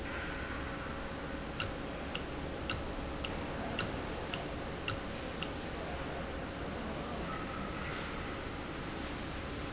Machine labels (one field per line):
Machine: valve